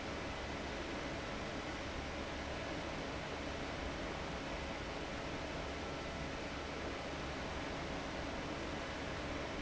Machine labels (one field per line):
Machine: fan